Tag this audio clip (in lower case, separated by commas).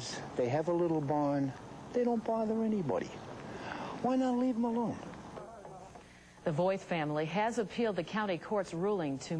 speech